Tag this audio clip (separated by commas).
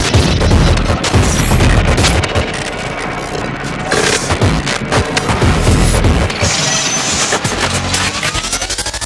Music, Electronica